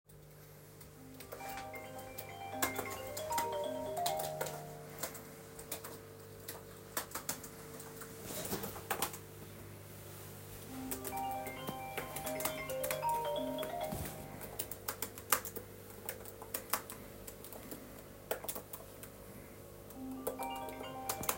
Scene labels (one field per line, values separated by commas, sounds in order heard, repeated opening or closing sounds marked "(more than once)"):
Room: bedroom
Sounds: keyboard typing, phone ringing